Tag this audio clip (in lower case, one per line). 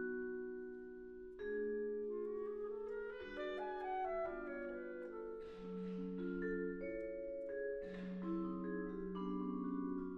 music
xylophone
musical instrument
vibraphone
percussion